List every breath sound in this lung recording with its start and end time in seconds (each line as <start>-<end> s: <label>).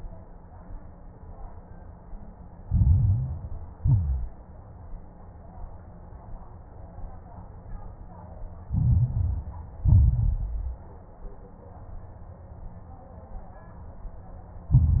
2.60-3.72 s: inhalation
2.60-3.72 s: crackles
3.76-4.43 s: exhalation
3.76-4.43 s: crackles
8.66-9.78 s: inhalation
8.66-9.78 s: crackles
9.80-10.88 s: exhalation
9.80-10.88 s: crackles
14.71-15.00 s: inhalation
14.71-15.00 s: crackles